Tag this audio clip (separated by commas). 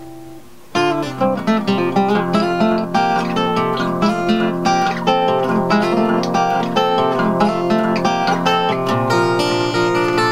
Music